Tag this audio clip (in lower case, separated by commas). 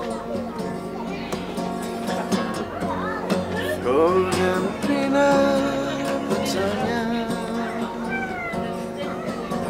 speech, music